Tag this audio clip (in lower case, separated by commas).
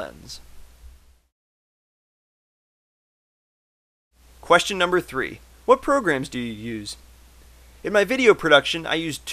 speech